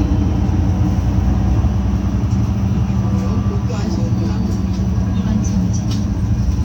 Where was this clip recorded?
on a bus